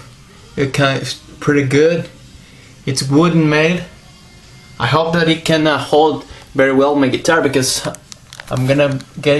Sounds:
speech

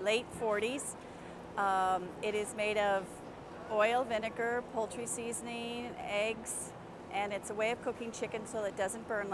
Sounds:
speech

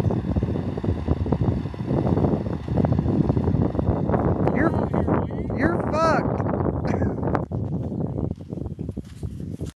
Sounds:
truck
vehicle
speech

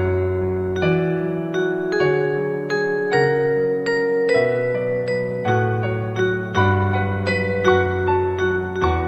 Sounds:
music
lullaby

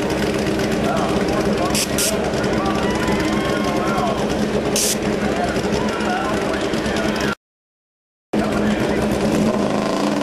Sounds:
speech

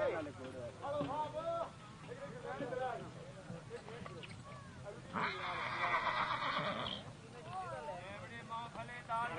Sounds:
whinny
speech

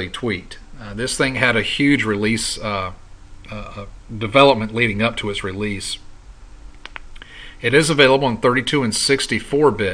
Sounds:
speech

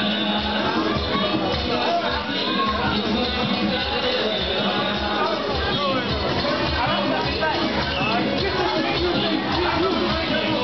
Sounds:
music
speech

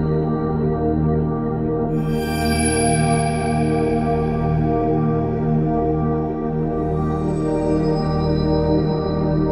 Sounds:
singing bowl

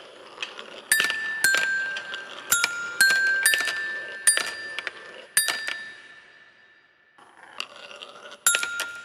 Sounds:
playing glockenspiel

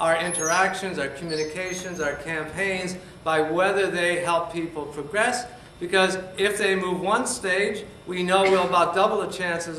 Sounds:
speech
inside a large room or hall

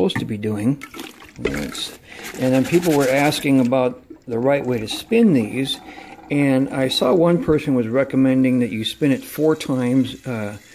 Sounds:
water
speech

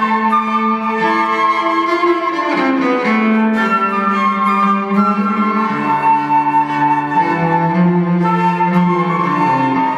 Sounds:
violin
musical instrument
music
flute
cello

